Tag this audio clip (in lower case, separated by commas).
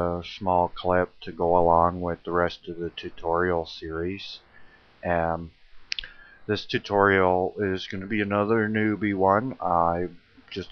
speech